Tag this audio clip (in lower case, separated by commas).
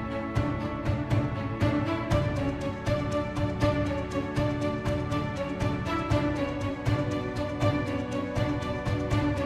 music